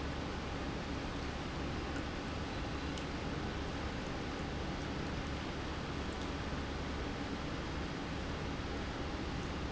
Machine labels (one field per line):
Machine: pump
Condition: normal